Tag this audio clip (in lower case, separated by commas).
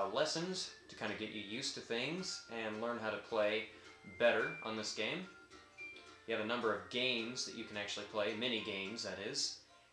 music, speech